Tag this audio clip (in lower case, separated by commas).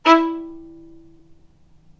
musical instrument, bowed string instrument, music